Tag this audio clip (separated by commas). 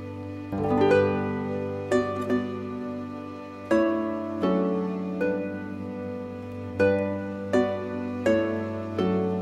Music, Plucked string instrument, Musical instrument